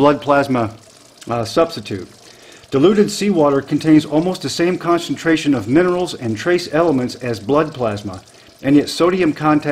Man speaking and running water